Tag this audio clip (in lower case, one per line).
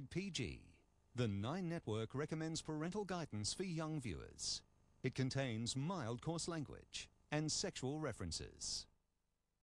speech